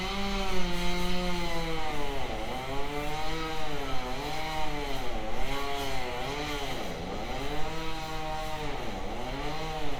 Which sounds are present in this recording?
unidentified powered saw